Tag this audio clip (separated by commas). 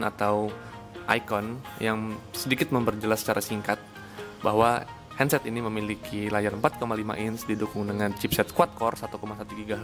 Music, Speech